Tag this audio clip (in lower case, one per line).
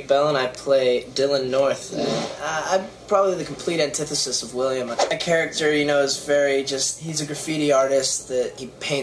speech